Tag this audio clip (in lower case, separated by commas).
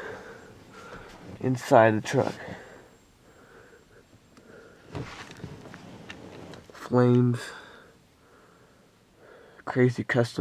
speech